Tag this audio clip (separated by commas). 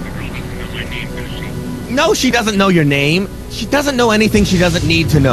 Speech